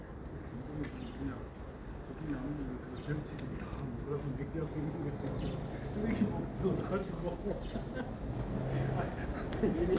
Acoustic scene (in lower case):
residential area